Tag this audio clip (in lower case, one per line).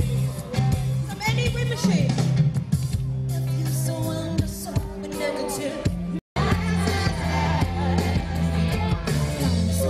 music
female speech
speech